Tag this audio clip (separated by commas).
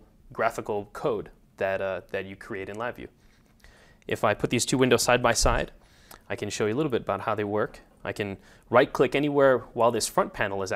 Speech